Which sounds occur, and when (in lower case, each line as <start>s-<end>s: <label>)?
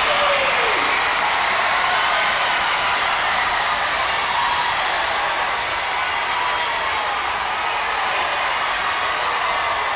0.0s-3.3s: man speaking
0.0s-9.9s: crowd
0.2s-1.3s: clapping
1.6s-2.5s: clapping
2.7s-3.8s: clapping
2.7s-3.1s: squeal
3.7s-4.2s: generic impact sounds
3.9s-4.3s: squeal
4.1s-4.8s: clapping
4.5s-4.8s: generic impact sounds
4.9s-5.6s: clapping
5.8s-6.4s: clapping
5.9s-6.0s: generic impact sounds
6.4s-6.7s: generic impact sounds
6.7s-7.3s: clapping
7.5s-8.2s: clapping
7.5s-8.6s: squeal
9.2s-9.9s: squeal